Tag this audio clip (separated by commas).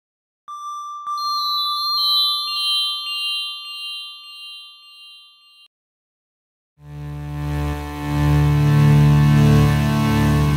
Music, Synthesizer